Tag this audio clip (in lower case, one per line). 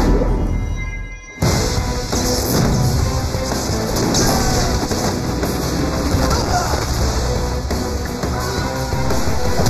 music